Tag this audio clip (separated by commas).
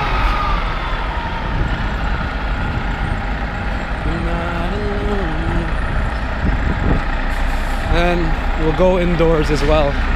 Speech